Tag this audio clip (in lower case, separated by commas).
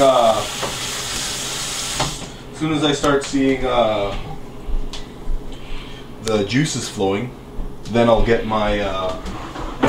speech, inside a small room